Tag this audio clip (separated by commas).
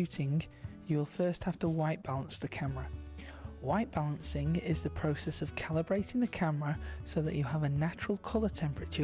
Music, Speech